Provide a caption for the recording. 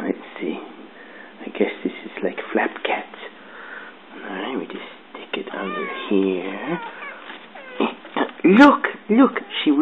Man speaking and cat meowing